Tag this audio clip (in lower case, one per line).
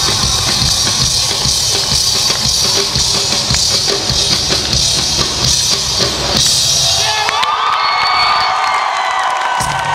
music